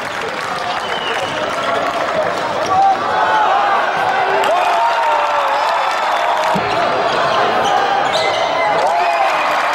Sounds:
Basketball bounce, Speech

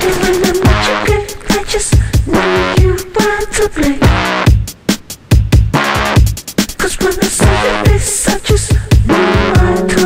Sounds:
Sampler, Music

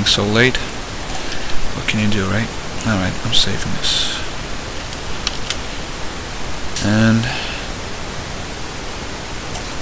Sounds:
Speech, Pink noise

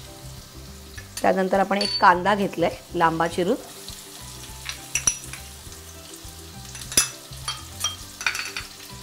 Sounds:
inside a small room, Speech, Music

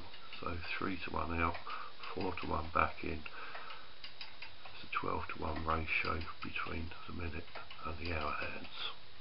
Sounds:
Speech, Clock

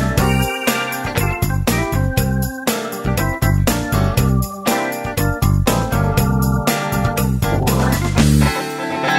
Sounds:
Electric guitar

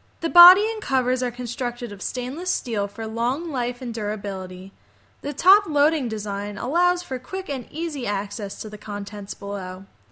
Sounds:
Speech

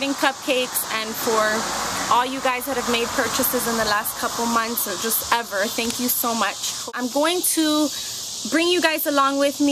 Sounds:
Speech

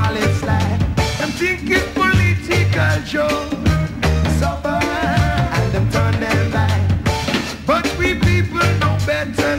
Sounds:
Musical instrument, Ska, Singing, Music, Drum

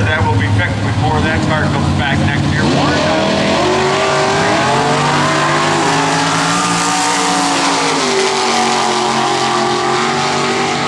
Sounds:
Car, Speech, Motor vehicle (road), Vehicle

